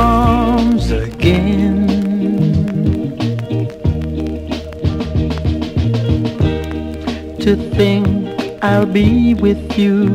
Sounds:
Music

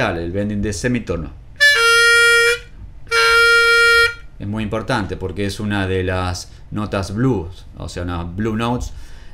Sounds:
Speech, Harmonica, Music

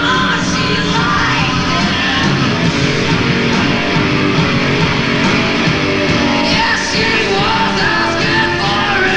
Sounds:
Singing, Rock and roll, Rock music, Grunge, Music

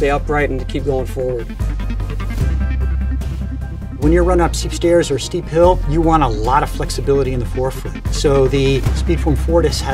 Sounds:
Speech, Music

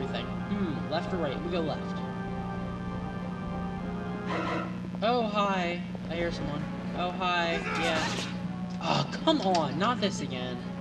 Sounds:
Music, Speech

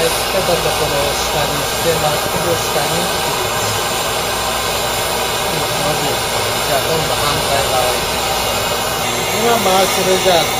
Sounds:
Speech

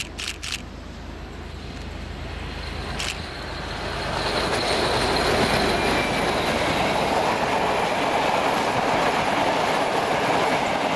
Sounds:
Railroad car, Clickety-clack, Train, Rail transport

